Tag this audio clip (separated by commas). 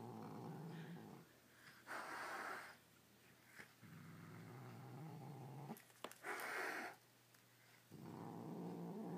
Cat, Domestic animals, Animal